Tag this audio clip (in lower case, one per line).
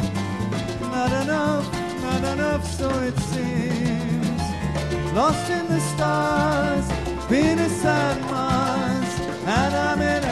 music
jazz